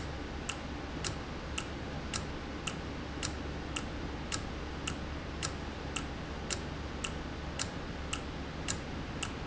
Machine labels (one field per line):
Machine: valve